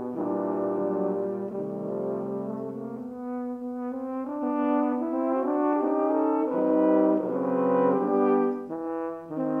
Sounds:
French horn, Music

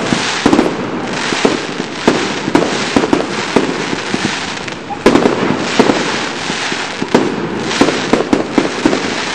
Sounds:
Fireworks, fireworks banging

